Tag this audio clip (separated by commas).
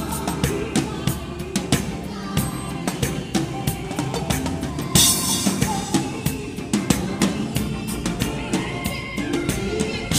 Music, Gospel music